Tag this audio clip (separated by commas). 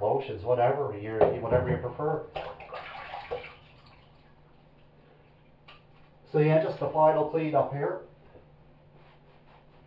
Speech